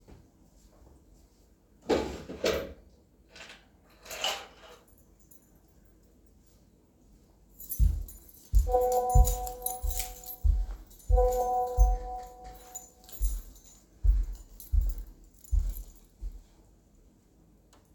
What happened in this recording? I walked to my key drawer, opened it and grabbed my keys. I then began walking toward my phone with my keys, where my phone rang twice as my keys were jingling as I walked.